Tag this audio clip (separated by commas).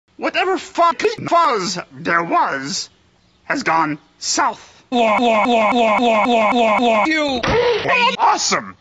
Speech